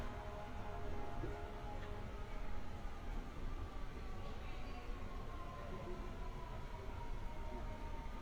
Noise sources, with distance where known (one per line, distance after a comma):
siren
person or small group talking